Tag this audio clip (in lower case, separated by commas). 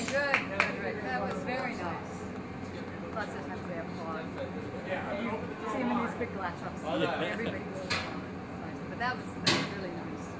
inside a large room or hall, speech